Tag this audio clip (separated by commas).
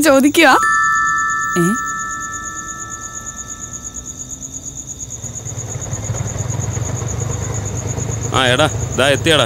Speech, Music